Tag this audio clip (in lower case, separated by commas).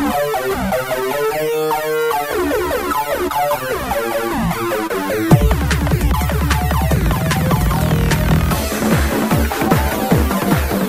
techno, electronic music, video game music, music